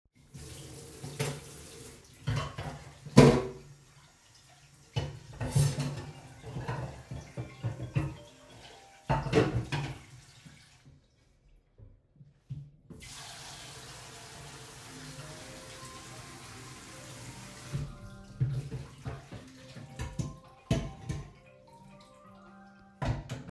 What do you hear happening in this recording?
I was doing the dishes and then received a phone call.